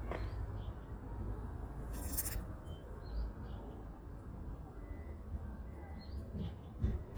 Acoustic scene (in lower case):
residential area